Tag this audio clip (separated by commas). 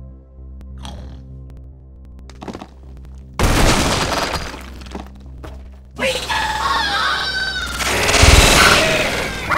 Speech